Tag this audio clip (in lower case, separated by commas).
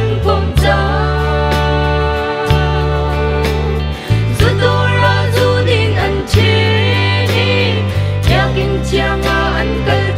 music